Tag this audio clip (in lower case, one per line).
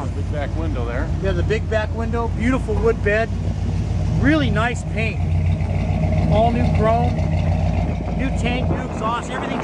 speech